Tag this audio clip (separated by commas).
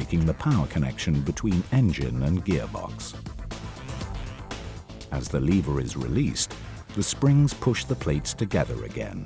Music, Speech